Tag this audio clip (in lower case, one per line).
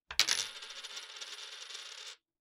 coin (dropping)
domestic sounds